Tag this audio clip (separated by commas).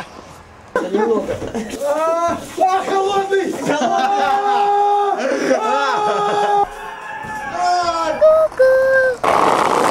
Speech